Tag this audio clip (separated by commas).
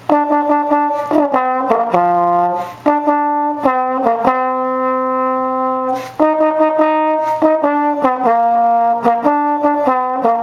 playing trombone